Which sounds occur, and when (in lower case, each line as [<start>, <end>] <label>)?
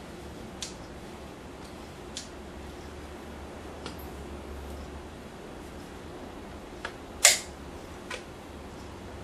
[0.00, 9.23] mechanisms
[8.07, 8.14] tick